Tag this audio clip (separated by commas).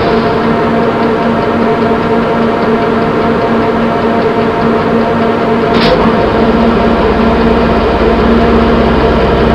outside, urban or man-made, Train, Railroad car